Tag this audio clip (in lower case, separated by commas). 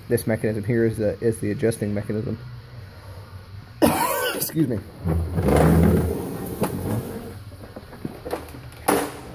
speech